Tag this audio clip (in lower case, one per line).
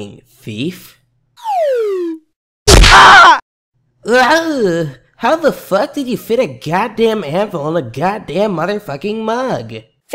thwack